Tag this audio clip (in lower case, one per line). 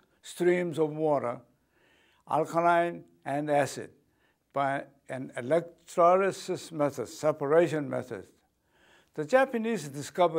speech